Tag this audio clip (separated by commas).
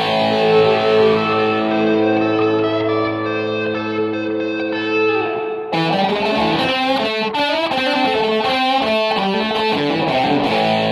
Musical instrument, Guitar, Music, Electric guitar, Strum, Plucked string instrument